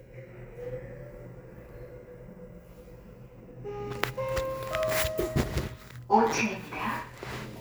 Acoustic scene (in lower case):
elevator